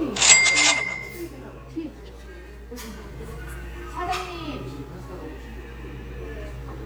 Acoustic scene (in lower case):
restaurant